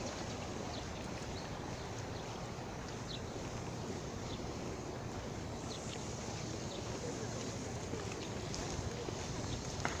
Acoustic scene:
park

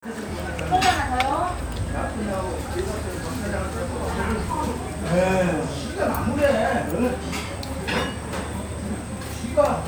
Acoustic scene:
restaurant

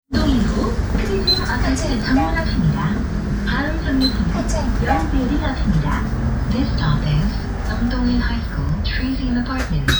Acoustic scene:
bus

